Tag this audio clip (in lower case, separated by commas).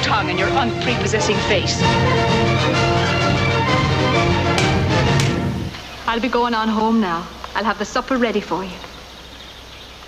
music, outside, rural or natural, speech